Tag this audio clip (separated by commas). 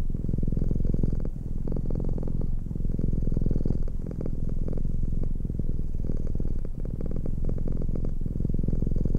Purr